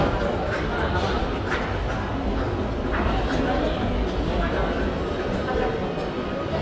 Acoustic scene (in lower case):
crowded indoor space